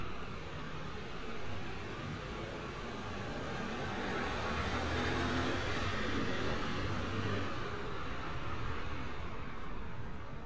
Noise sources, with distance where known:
medium-sounding engine, far

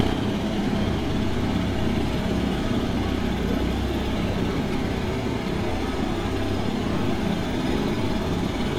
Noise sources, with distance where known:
jackhammer, near

